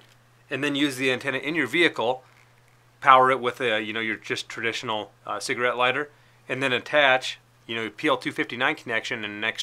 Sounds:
Speech

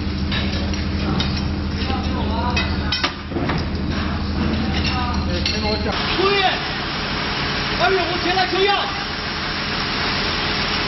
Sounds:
Speech

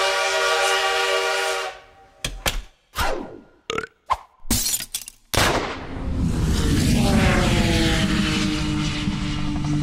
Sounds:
crash, swoosh, Sound effect

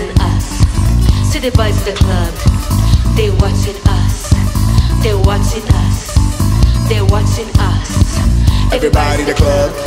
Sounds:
Music

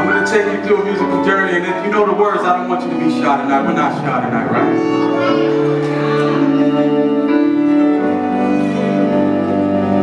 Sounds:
Music, fiddle, Speech, Musical instrument

